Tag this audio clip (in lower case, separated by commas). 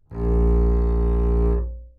music, bowed string instrument, musical instrument